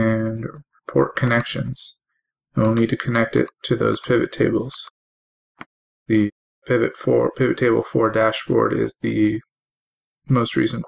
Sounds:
speech

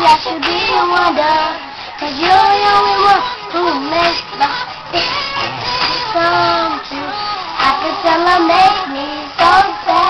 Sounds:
child singing
music

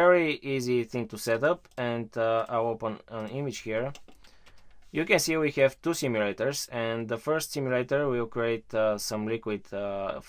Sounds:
speech

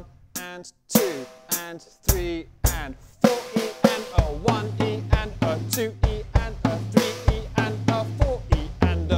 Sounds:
music
drum roll
drum
cymbal
musical instrument
drum kit

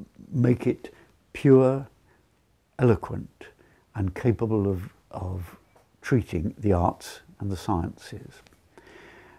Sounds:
speech

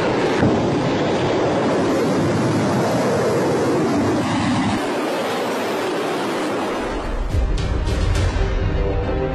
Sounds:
missile launch

